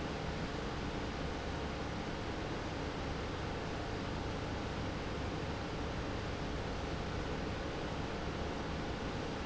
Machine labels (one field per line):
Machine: pump